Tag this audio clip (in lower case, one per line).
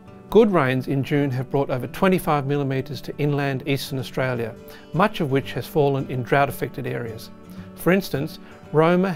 music
speech